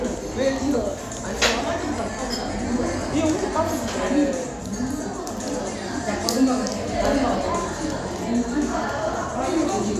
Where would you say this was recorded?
in a crowded indoor space